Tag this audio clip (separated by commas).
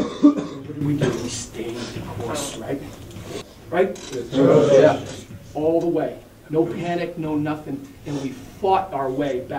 Male speech, Speech, Conversation